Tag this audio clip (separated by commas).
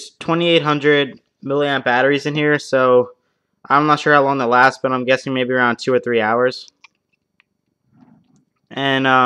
Speech